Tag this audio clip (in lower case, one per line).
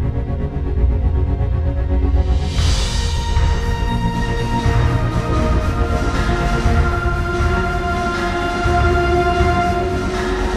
music
new-age music